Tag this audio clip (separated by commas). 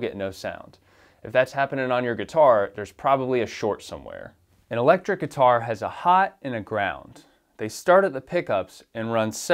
Speech